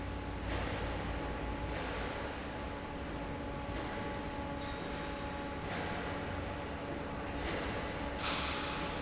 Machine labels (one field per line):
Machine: fan